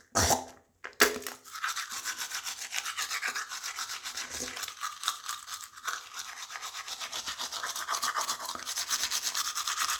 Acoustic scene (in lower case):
restroom